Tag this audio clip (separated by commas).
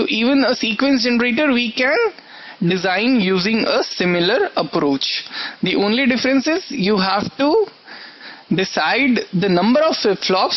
Speech